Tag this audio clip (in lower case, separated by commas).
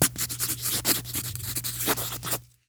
domestic sounds, writing